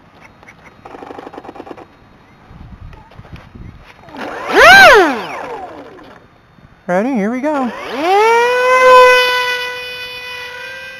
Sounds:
outside, rural or natural, Speech

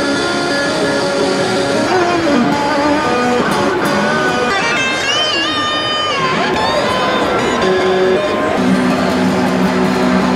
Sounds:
Strum, Plucked string instrument, Musical instrument, Electric guitar, Guitar, Music, Speech

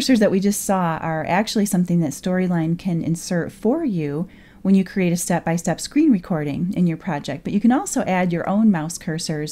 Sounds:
Speech

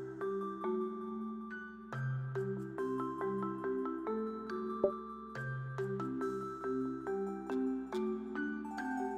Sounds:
Music

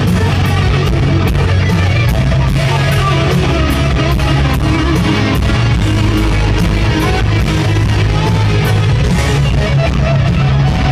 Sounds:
Musical instrument, Guitar, Music

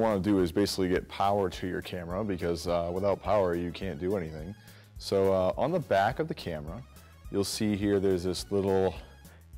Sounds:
Speech, Music

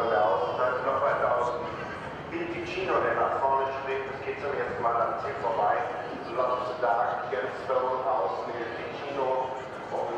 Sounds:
Speech

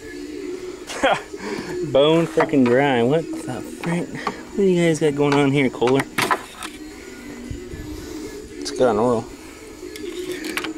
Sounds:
Speech, Music

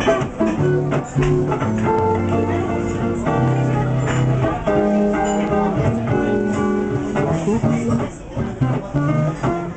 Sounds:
Speech, Music

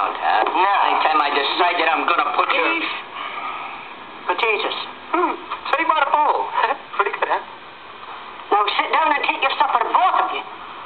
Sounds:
Speech

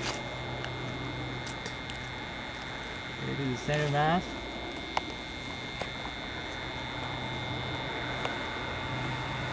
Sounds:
Speech

